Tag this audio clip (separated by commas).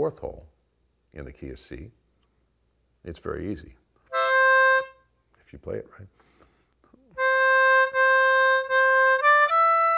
Music, Speech